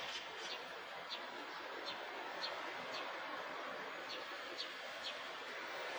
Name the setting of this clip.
park